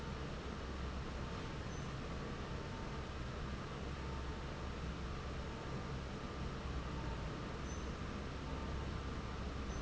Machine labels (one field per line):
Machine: fan